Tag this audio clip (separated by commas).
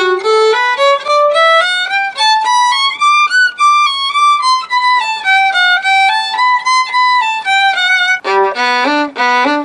Music, Violin, Musical instrument